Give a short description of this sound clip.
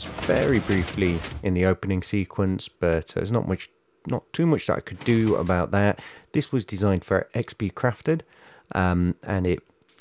Door moving while an adult man talks